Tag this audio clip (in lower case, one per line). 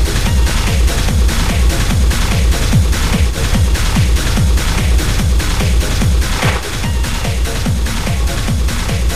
electronic music
music
techno